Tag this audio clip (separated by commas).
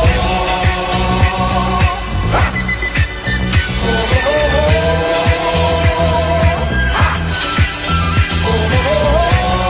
Disco